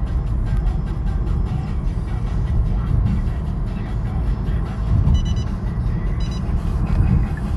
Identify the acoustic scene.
car